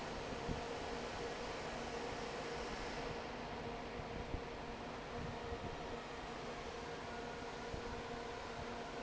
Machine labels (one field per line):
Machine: fan